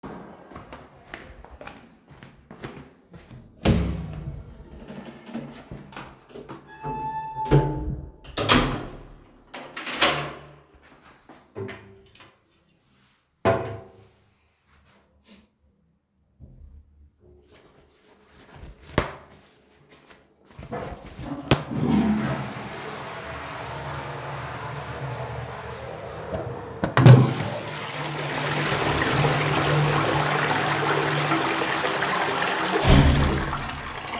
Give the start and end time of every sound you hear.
0.0s-3.5s: footsteps
3.5s-4.3s: door
4.3s-7.1s: footsteps
7.2s-10.8s: door
21.7s-26.6s: toilet flushing
26.8s-27.6s: door
27.0s-34.2s: running water
32.8s-33.4s: door

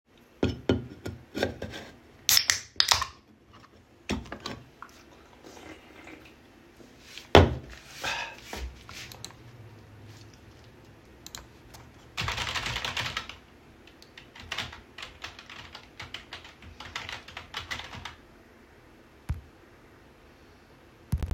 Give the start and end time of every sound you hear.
2.0s-3.4s: cutlery and dishes
11.0s-18.3s: keyboard typing

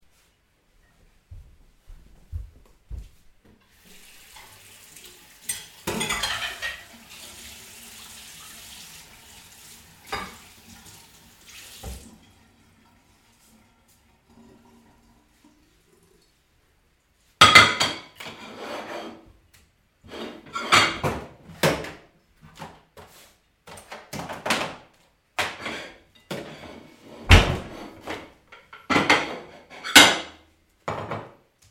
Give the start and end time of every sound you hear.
3.7s-12.1s: running water
17.4s-19.3s: cutlery and dishes
20.1s-22.1s: cutlery and dishes
22.4s-24.9s: cutlery and dishes
25.4s-31.7s: cutlery and dishes

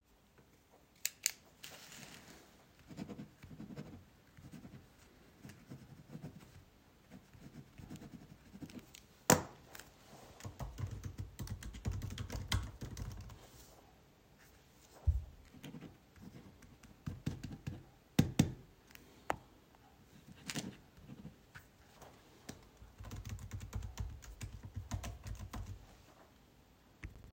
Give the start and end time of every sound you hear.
10.2s-13.7s: keyboard typing
22.5s-26.4s: keyboard typing

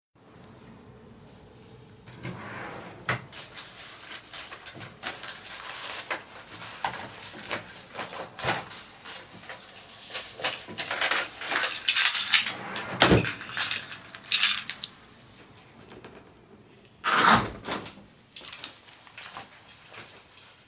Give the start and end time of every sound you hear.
2.0s-3.4s: wardrobe or drawer
10.3s-15.0s: keys
12.6s-13.5s: wardrobe or drawer
17.0s-18.2s: window
18.3s-20.3s: footsteps

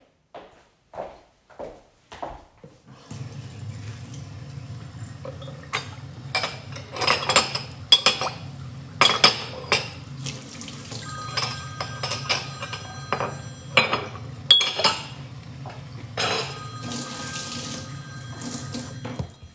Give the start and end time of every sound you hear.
0.2s-3.1s: footsteps
3.1s-19.5s: running water
5.1s-16.9s: cutlery and dishes
10.9s-19.5s: phone ringing

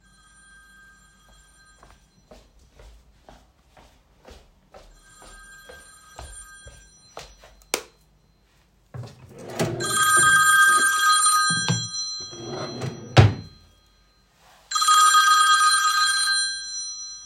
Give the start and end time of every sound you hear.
0.0s-17.3s: phone ringing
1.3s-7.7s: footsteps
7.7s-8.1s: light switch
8.9s-10.6s: wardrobe or drawer
12.2s-13.5s: wardrobe or drawer

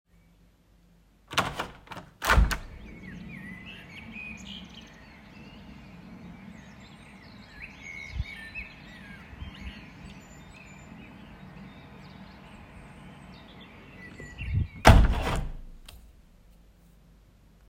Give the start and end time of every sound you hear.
1.3s-2.7s: window
14.4s-15.6s: window

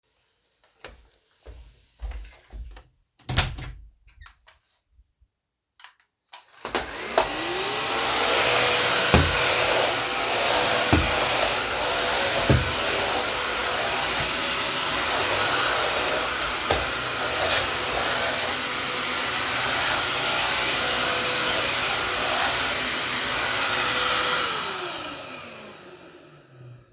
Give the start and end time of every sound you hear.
0.8s-4.4s: footsteps
2.5s-3.9s: door
6.3s-25.9s: vacuum cleaner

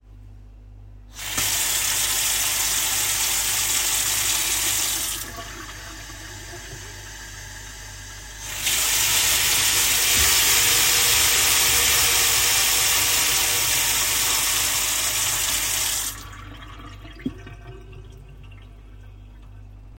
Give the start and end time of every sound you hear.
1.1s-16.2s: running water

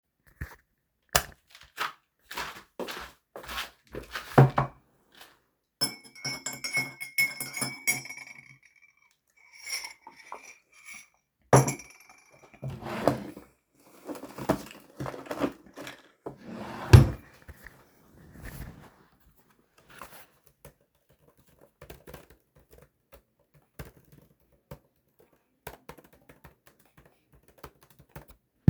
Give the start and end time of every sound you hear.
0.9s-1.4s: light switch
1.7s-4.3s: footsteps
5.6s-8.5s: cutlery and dishes
9.5s-11.9s: cutlery and dishes
12.6s-13.5s: wardrobe or drawer
16.4s-17.3s: wardrobe or drawer
20.5s-28.6s: keyboard typing

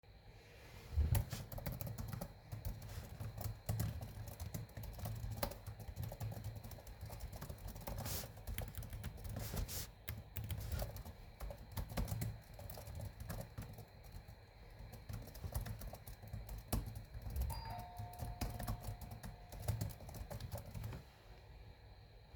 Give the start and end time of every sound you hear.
0.9s-21.1s: keyboard typing
17.4s-19.2s: bell ringing

